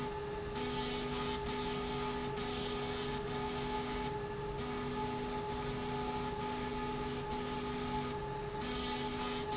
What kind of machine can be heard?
slide rail